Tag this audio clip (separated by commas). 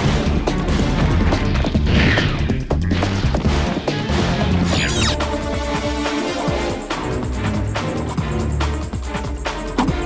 Music